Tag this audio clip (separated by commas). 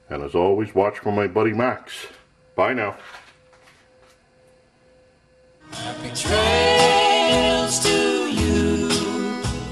Speech, Music